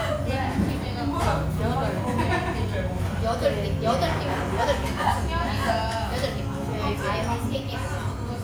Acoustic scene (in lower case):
restaurant